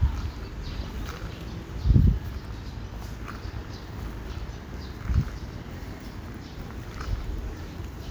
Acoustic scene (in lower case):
park